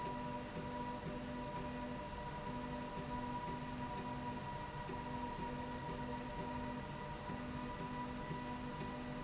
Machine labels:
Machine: slide rail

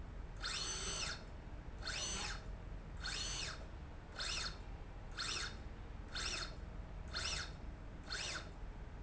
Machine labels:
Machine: slide rail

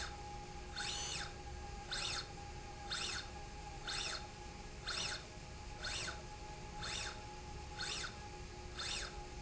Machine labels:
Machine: slide rail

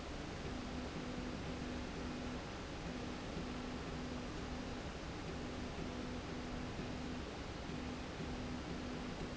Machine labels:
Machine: slide rail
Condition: normal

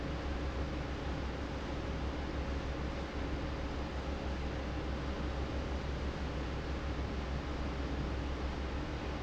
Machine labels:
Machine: fan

